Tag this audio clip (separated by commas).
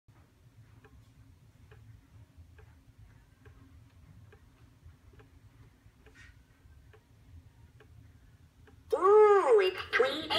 Speech, Clock